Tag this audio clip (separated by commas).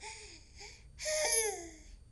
Breathing, Respiratory sounds, Human voice, Sigh